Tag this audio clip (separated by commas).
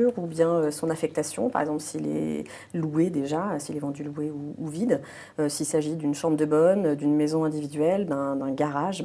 Speech